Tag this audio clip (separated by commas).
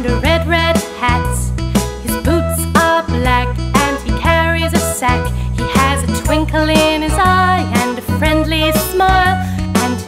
Singing, Christmas music, Music for children, Music